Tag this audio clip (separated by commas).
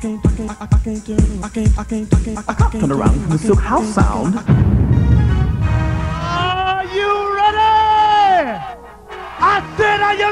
Speech, Music, House music